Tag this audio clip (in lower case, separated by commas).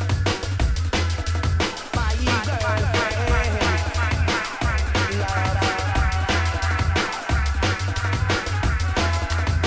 reggae, drum and bass, song, music